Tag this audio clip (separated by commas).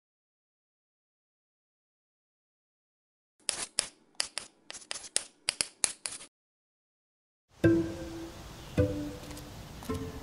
outside, rural or natural, Music